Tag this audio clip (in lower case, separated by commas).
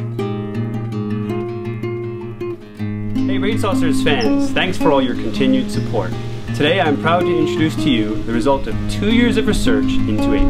speech, music